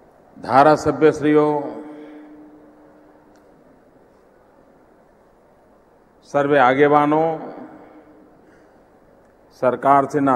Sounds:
speech
monologue
male speech

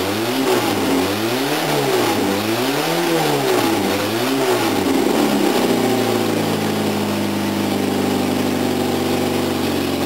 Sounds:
car
motor vehicle (road)
vehicle
engine
accelerating

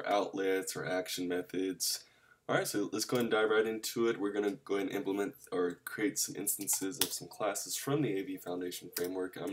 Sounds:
speech

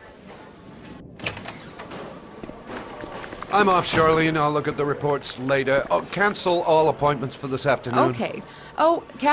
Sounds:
speech

